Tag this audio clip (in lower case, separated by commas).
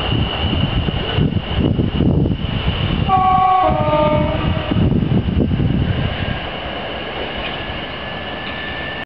outside, urban or man-made, train, vehicle horn, vehicle